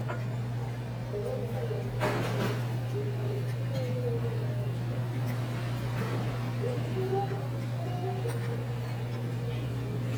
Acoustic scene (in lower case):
restaurant